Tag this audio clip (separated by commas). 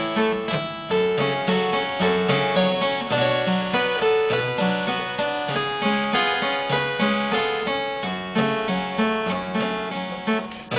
Music